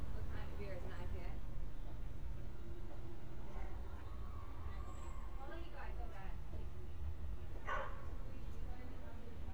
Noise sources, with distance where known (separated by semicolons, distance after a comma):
person or small group talking, near; dog barking or whining, near